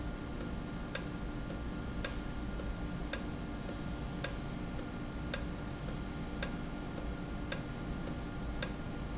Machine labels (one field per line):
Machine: valve